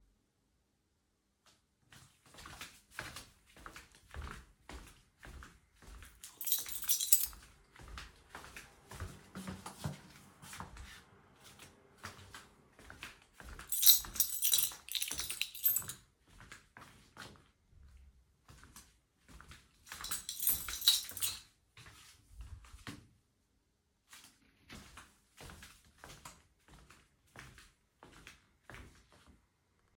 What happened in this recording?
I held the phone while walking through the apartment. My footsteps are audible during most of the scene. The keychain sound occurs repeatedly while I move. This is a natural indoor walking sequence.